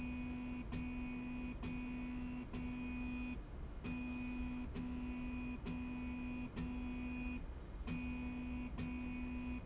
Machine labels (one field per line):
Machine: slide rail